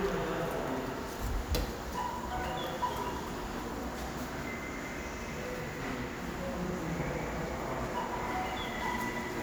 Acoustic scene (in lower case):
subway station